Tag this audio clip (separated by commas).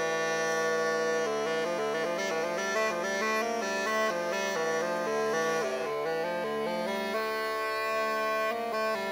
playing bagpipes